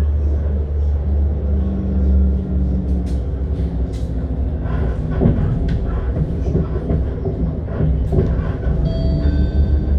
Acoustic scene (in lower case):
bus